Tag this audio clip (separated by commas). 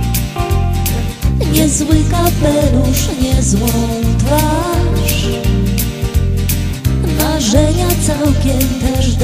Music